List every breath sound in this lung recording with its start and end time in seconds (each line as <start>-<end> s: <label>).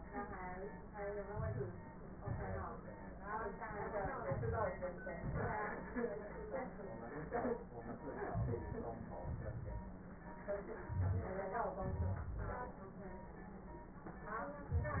1.23-1.81 s: inhalation
1.23-1.81 s: crackles
2.18-2.82 s: exhalation
2.18-2.82 s: crackles
4.15-4.80 s: inhalation
4.15-4.80 s: crackles
4.99-5.62 s: exhalation
8.29-8.74 s: inhalation
8.29-8.74 s: crackles
9.23-9.99 s: exhalation
11.84-12.72 s: exhalation